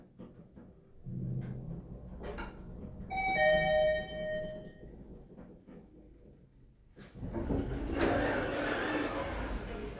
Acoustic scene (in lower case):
elevator